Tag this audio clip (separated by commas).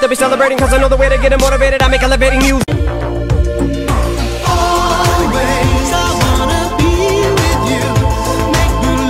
Music